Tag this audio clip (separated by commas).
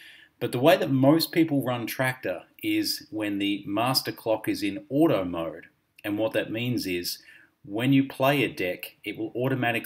Speech